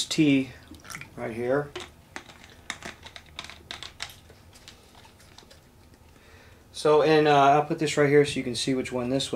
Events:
0.0s-0.2s: generic impact sounds
0.0s-9.3s: mechanisms
0.1s-0.7s: man speaking
0.4s-0.6s: breathing
0.5s-1.1s: pour
0.8s-1.1s: generic impact sounds
1.1s-1.7s: man speaking
1.7s-1.9s: generic impact sounds
2.1s-2.5s: generic impact sounds
2.7s-3.2s: generic impact sounds
3.4s-3.5s: generic impact sounds
3.7s-4.2s: generic impact sounds
4.4s-4.5s: surface contact
4.5s-4.7s: generic impact sounds
4.8s-5.0s: surface contact
5.4s-5.4s: tick
5.9s-6.0s: tick
6.1s-6.7s: breathing
6.7s-9.3s: man speaking

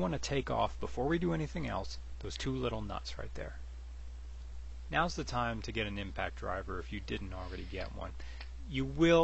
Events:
0.0s-1.8s: man speaking
2.2s-3.6s: man speaking
4.8s-8.1s: man speaking
8.7s-9.2s: man speaking

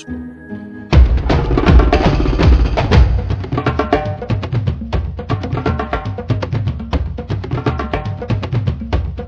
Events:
0.0s-9.2s: music

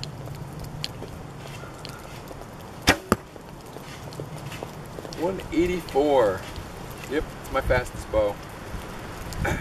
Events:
0.0s-9.6s: background noise
0.0s-9.6s: mechanisms
1.5s-2.1s: bird call
1.8s-1.9s: tick
2.8s-3.2s: arrow
7.3s-9.6s: wind noise (microphone)
9.2s-9.4s: throat clearing

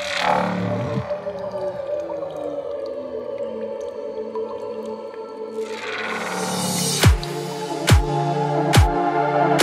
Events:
0.0s-9.6s: music

